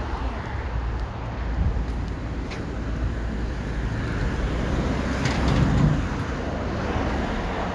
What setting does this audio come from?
street